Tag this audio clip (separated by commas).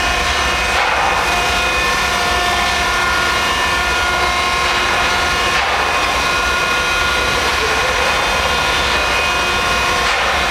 Speech